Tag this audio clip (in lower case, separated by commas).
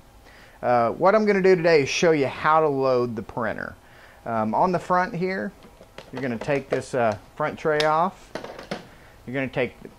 speech